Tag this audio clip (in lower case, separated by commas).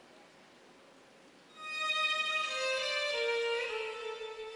music